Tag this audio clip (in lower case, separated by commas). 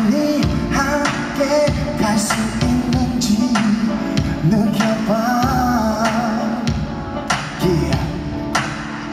music